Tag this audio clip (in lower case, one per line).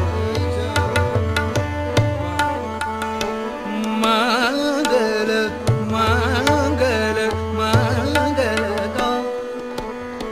tabla
drum
percussion